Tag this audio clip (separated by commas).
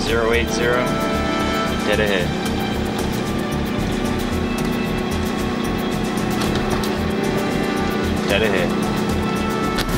Music, Speech